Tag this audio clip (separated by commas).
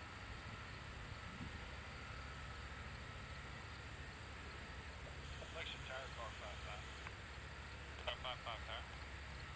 Speech, Aircraft, Vehicle